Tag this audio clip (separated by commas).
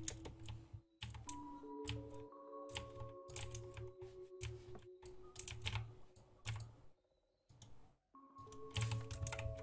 mouse clicking